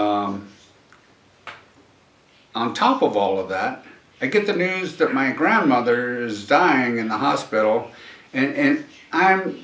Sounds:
speech

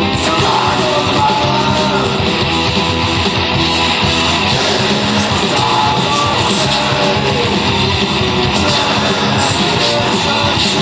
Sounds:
music, outside, urban or man-made

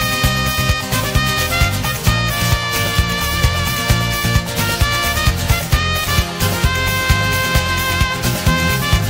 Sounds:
music

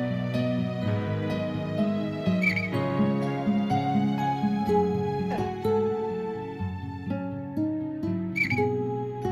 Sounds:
music, tender music

